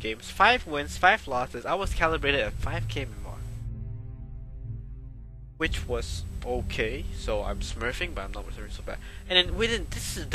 Young male voice speaking